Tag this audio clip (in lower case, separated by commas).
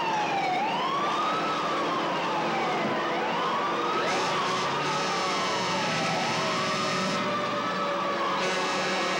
buzzer